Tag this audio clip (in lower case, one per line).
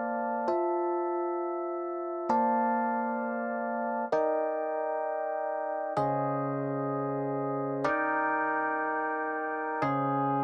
music